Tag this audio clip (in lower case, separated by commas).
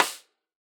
musical instrument, percussion, snare drum, drum, music